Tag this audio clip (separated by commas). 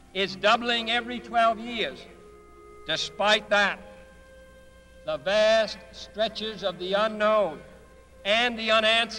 Speech, Narration, Male speech